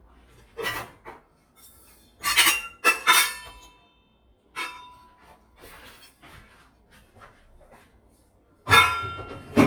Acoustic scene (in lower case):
kitchen